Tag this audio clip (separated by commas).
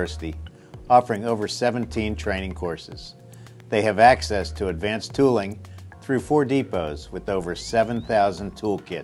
Speech